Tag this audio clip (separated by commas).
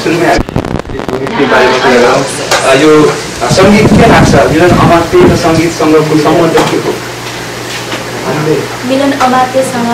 Conversation, Speech